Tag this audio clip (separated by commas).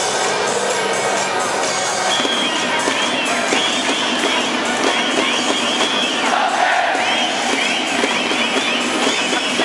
Music